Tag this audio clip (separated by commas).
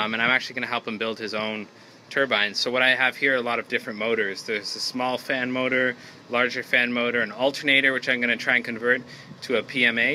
Speech